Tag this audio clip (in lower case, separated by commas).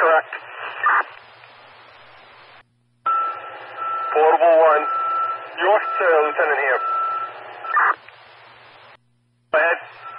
speech, white noise